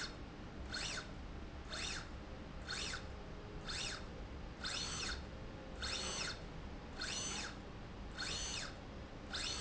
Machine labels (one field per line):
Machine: slide rail